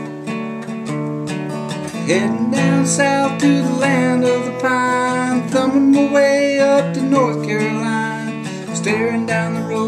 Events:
0.0s-9.8s: music
1.9s-8.4s: male singing
8.7s-9.8s: male singing

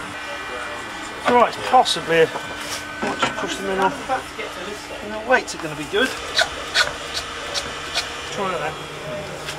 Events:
0.0s-9.5s: mechanisms
0.1s-0.9s: man speaking
1.3s-2.3s: man speaking
2.3s-2.5s: generic impact sounds
3.0s-3.3s: generic impact sounds
3.0s-4.2s: man speaking
3.7s-3.9s: generic impact sounds
4.4s-6.1s: man speaking
5.5s-5.6s: generic impact sounds
6.3s-6.4s: filing (rasp)
6.7s-6.9s: filing (rasp)
7.1s-7.2s: filing (rasp)
7.5s-7.6s: filing (rasp)
7.9s-8.0s: filing (rasp)
8.4s-8.8s: man speaking
9.4s-9.5s: filing (rasp)

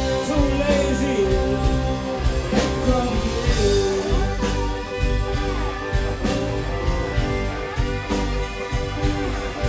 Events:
0.0s-9.6s: music
0.2s-1.3s: male singing
2.8s-4.4s: male singing

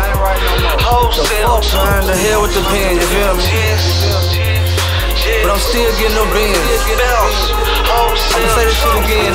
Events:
0.0s-4.7s: male singing
0.0s-9.3s: music
5.1s-9.3s: male singing

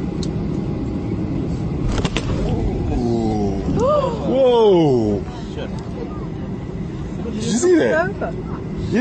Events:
0.0s-9.0s: airplane
0.1s-0.4s: generic impact sounds
1.8s-2.3s: generic impact sounds
2.4s-2.6s: generic impact sounds
2.9s-3.5s: human sounds
3.7s-4.2s: female speech
3.7s-9.0s: conversation
3.7s-4.0s: generic impact sounds
4.3s-5.2s: man speaking
5.5s-5.9s: man speaking
5.7s-5.9s: generic impact sounds
7.3s-7.6s: man speaking
7.6s-8.3s: female speech

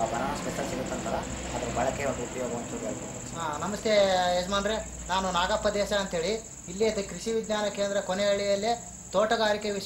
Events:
0.0s-9.8s: background noise
0.0s-1.3s: male speech
0.0s-9.8s: bird
1.8s-3.0s: male speech
3.4s-4.8s: male speech
5.0s-6.4s: male speech
6.7s-8.8s: male speech
9.1s-9.8s: male speech

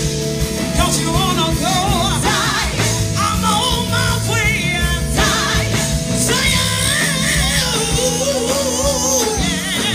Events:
0.0s-9.9s: music
0.7s-2.9s: female singing
3.1s-5.9s: female singing
6.2s-9.9s: female singing
7.5s-9.9s: whoop

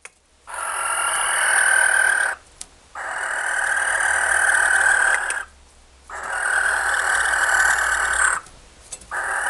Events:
0.0s-0.1s: clicking
0.0s-9.4s: mechanisms
0.4s-2.3s: tools
2.5s-2.7s: clicking
2.9s-5.4s: tools
5.1s-5.3s: clicking
6.0s-8.4s: tools
8.8s-9.0s: clicking
9.1s-9.4s: tools

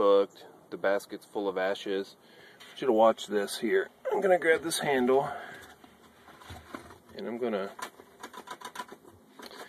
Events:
0.0s-0.3s: male speech
0.0s-9.6s: background noise
0.7s-2.2s: male speech
2.1s-2.6s: breathing
2.8s-3.8s: male speech
4.0s-5.3s: male speech
5.1s-5.8s: breathing
5.5s-6.1s: generic impact sounds
6.2s-6.9s: breathing
6.2s-6.9s: generic impact sounds
7.1s-7.2s: generic impact sounds
7.1s-7.8s: male speech
7.7s-8.9s: generic impact sounds
9.3s-9.6s: breathing
9.3s-9.6s: generic impact sounds

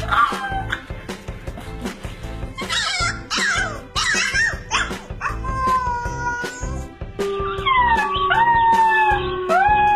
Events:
0.0s-0.8s: howl
0.0s-9.9s: music
2.5s-3.1s: howl
3.3s-3.8s: howl
4.0s-5.0s: howl
5.2s-6.8s: howl
7.2s-9.9s: howl

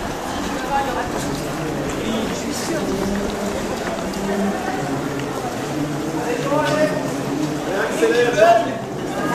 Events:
0.0s-9.3s: background noise
0.0s-9.3s: run
0.5s-9.3s: speech noise
0.5s-1.3s: woman speaking
1.2s-1.4s: generic impact sounds
2.0s-2.8s: male speech
3.2s-3.3s: tick
3.7s-3.9s: generic impact sounds
4.0s-4.0s: generic impact sounds
4.1s-4.2s: generic impact sounds
5.1s-5.2s: generic impact sounds
6.0s-7.1s: male speech
6.6s-6.8s: generic impact sounds
7.4s-7.5s: generic impact sounds
7.7s-8.7s: male speech
8.1s-8.2s: generic impact sounds
9.2s-9.3s: generic impact sounds

